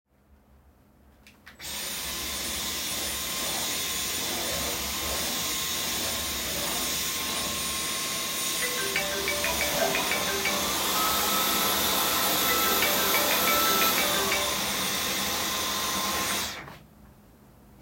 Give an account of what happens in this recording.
I vacuumed the room while walking around. During the vacuum cleaner sound, a phone started ringing and both events were audible at the same time.